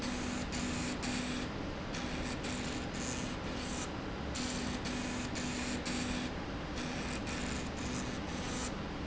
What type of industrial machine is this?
slide rail